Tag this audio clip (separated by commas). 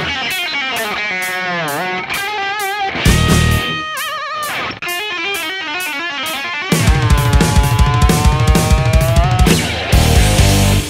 Guitar, Music, Musical instrument, Acoustic guitar, Plucked string instrument, Strum